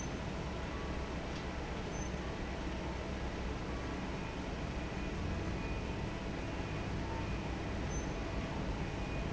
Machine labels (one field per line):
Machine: fan